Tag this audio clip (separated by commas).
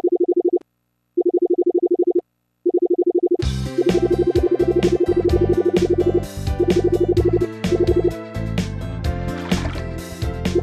Music